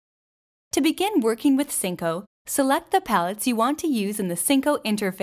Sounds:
speech

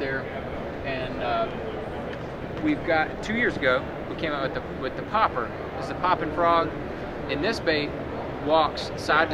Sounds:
speech

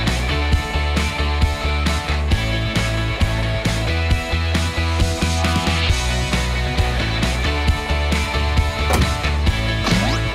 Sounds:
running electric fan

